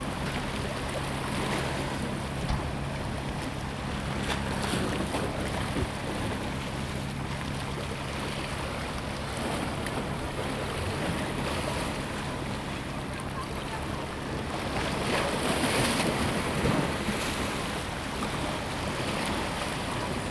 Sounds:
water, waves, ocean

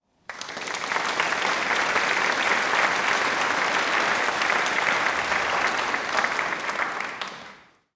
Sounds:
applause, human group actions

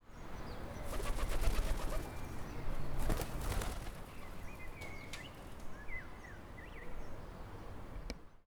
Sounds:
wild animals, animal, bird

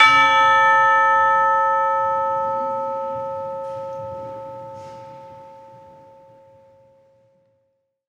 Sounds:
bell, church bell, percussion, musical instrument, music

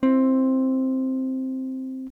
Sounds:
guitar, plucked string instrument, music, electric guitar, musical instrument, strum

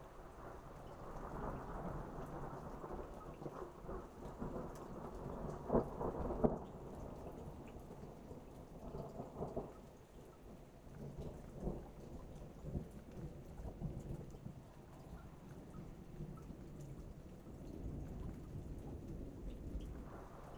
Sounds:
water, rain, thunderstorm

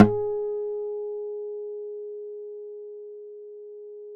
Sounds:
musical instrument, plucked string instrument, guitar, acoustic guitar, music

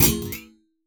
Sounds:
thud

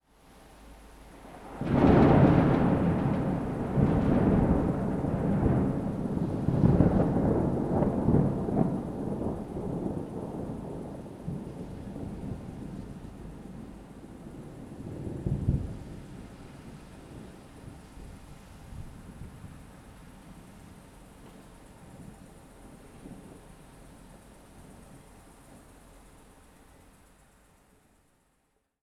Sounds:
thunder, thunderstorm

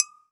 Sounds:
domestic sounds, dishes, pots and pans

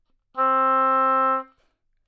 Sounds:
music, wind instrument, musical instrument

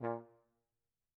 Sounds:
brass instrument, musical instrument, music

